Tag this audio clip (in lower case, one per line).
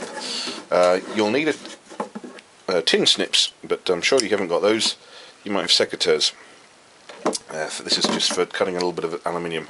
speech